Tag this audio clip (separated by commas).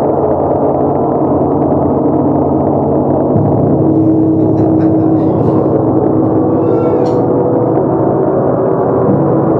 Gong